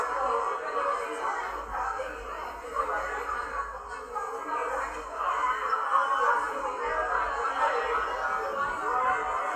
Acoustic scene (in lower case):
cafe